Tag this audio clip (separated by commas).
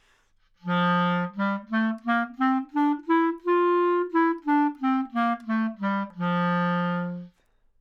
Music, Musical instrument, Wind instrument